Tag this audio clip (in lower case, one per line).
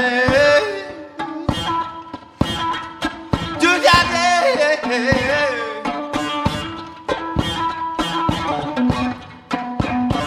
music
singing
musical instrument